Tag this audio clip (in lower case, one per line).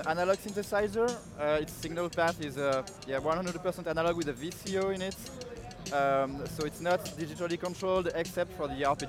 speech
music